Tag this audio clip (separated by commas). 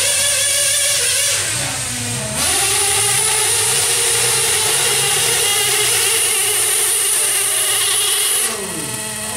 Speech, Truck